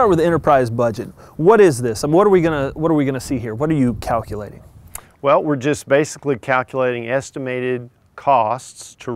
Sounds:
Speech

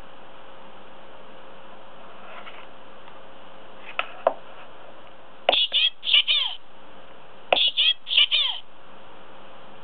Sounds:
Speech

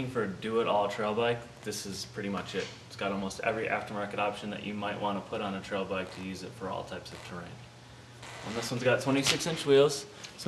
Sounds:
Speech

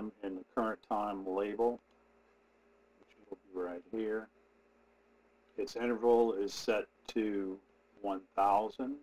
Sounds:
Speech

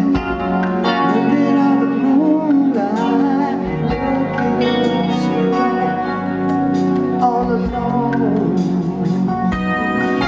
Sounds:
Music

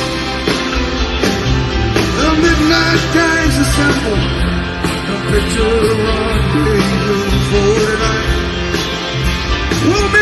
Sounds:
Music, Musical instrument

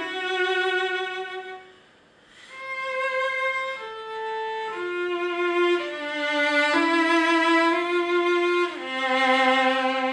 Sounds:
playing cello

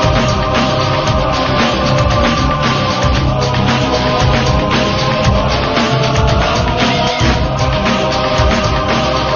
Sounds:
Music

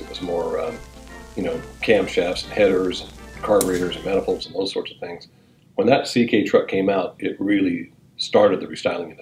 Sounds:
Music, Speech

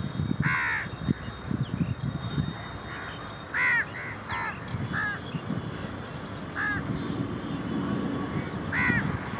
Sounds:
crow cawing

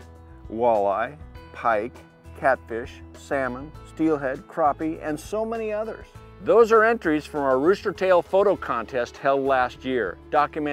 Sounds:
Speech, Music

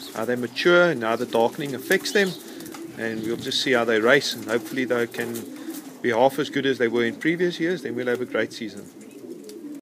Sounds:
Pigeon, Speech, Bird

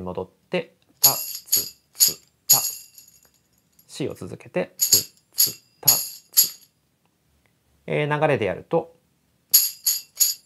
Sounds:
playing tambourine

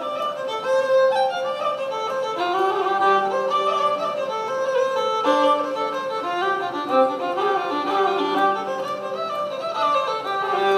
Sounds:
fiddle, Music, Bowed string instrument

